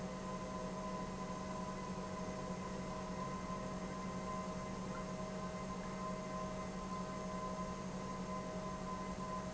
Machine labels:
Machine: pump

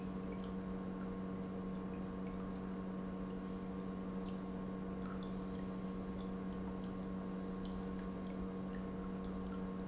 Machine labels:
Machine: pump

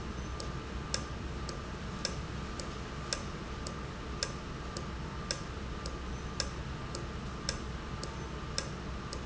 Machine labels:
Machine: valve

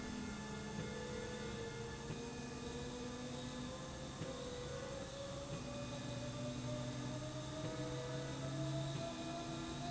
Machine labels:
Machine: slide rail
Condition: normal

